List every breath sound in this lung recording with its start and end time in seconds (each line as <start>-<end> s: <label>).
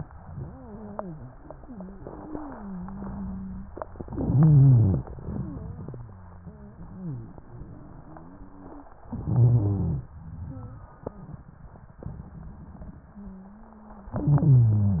0.38-3.72 s: wheeze
3.88-5.38 s: inhalation
4.04-5.04 s: wheeze
5.60-8.94 s: wheeze
9.10-10.10 s: inhalation
9.10-10.10 s: wheeze
10.36-10.88 s: wheeze
13.13-14.13 s: wheeze
14.15-15.00 s: inhalation
14.15-15.00 s: wheeze